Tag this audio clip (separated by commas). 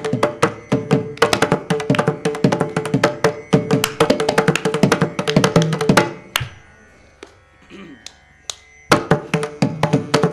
Music